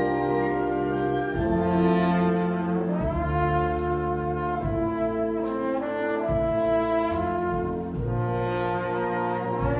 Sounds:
Music

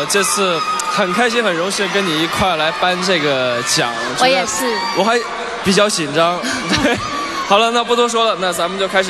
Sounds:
Speech

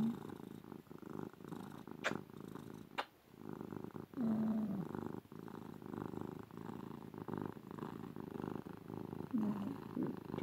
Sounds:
cat purring

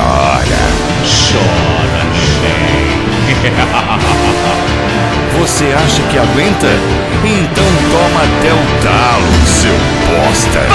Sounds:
Music, Sound effect, Speech

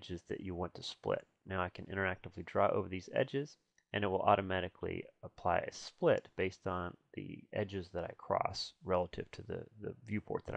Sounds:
Speech

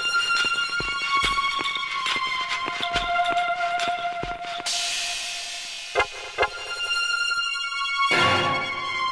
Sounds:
Music

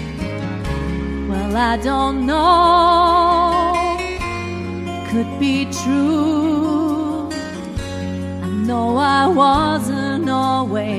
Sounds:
Music, Female singing

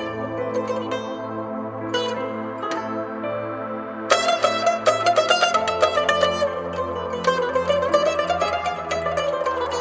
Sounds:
Traditional music, Music

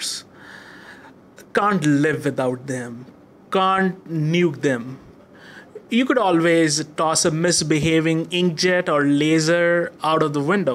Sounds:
Speech

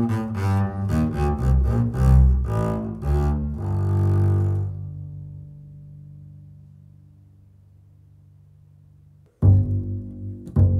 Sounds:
playing cello, Cello, Double bass, Music, Musical instrument, Bowed string instrument, Classical music

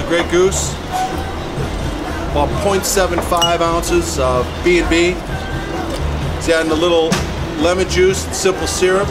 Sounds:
Music, Speech

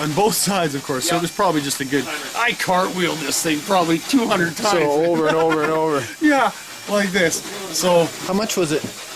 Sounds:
Speech

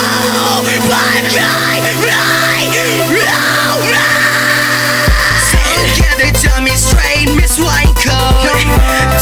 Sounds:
Music

